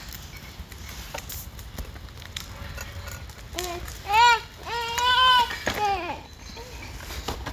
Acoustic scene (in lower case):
park